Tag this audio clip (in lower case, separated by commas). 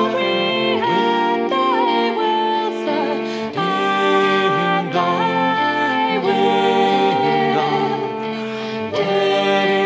music